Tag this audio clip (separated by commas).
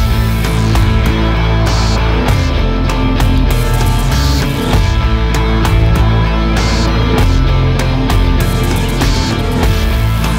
Music